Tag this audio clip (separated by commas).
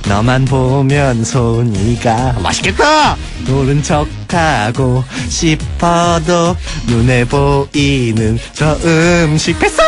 Funny music, Music